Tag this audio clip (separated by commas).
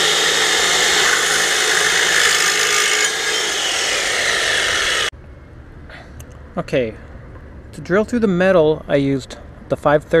Speech